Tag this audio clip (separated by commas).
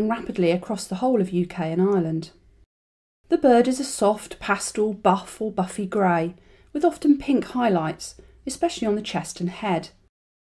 Speech